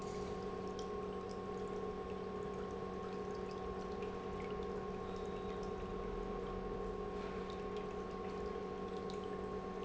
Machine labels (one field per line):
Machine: pump